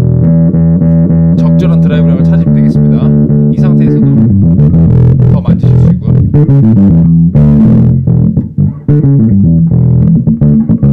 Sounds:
playing bass guitar, Music, Guitar, Musical instrument, Speech, Effects unit, Bass guitar

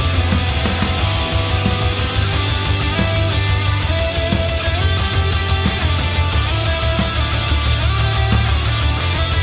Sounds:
Progressive rock, Plucked string instrument, Heavy metal, Musical instrument, Guitar, Music

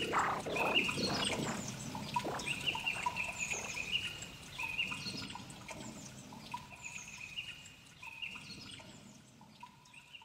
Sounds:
bird call, Bird, tweet

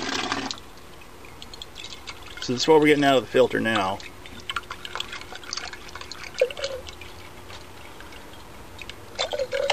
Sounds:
Speech, Drip, Water

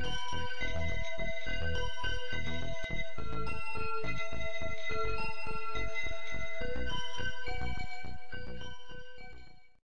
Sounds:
Music

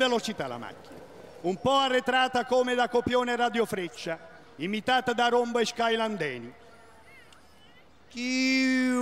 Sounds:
Speech

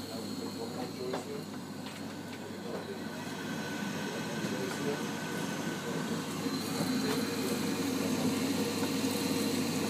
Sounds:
Speech

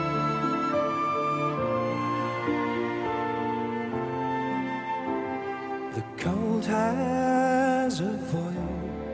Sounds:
Pop music, Music, Orchestra

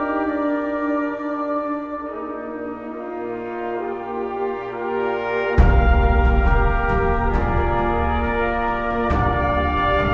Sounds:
Music

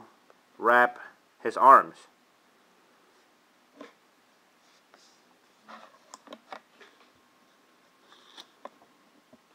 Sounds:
inside a small room, Speech

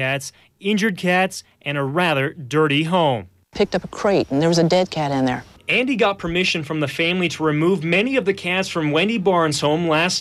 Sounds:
Speech

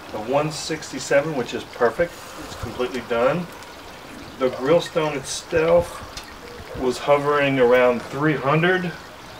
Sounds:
inside a small room, Boiling, Speech

